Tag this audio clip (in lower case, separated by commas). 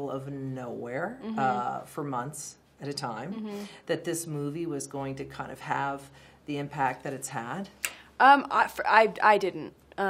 inside a small room, speech